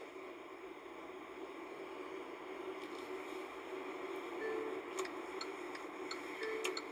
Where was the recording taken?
in a car